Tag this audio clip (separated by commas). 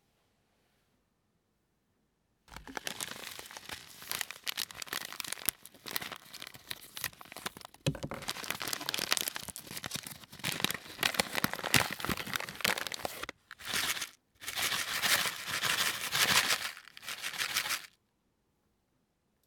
Crumpling